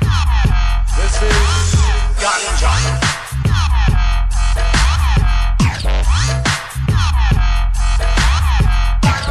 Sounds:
Music, Electronic music

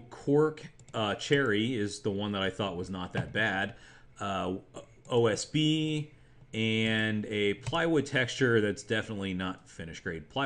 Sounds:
Speech

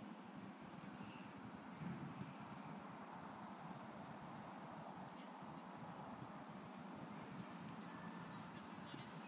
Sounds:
Speech

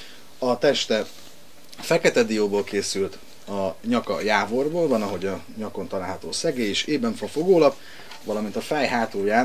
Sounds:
Speech

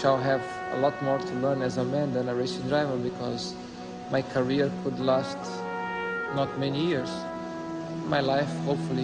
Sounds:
Music, monologue, man speaking, Speech

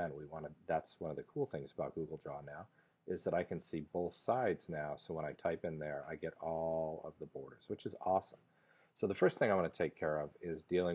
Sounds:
Speech

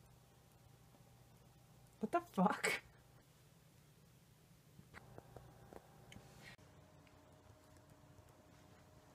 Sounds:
Speech

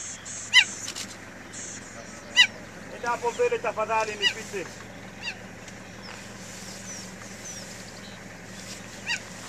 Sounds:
Speech, Animal

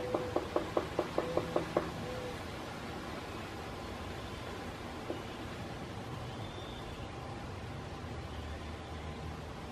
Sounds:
woodpecker pecking tree

